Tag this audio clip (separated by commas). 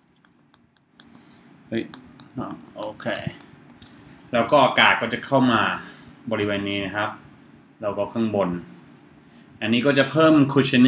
Speech